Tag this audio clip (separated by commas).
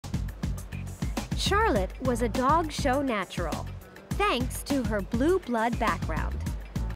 Speech, Music